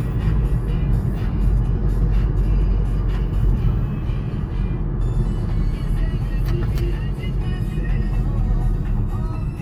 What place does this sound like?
car